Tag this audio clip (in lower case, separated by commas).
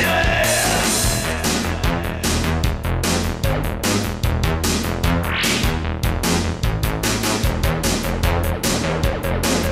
sampler, music, electronic dance music